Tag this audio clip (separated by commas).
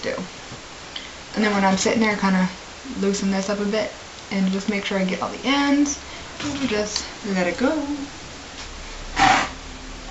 Speech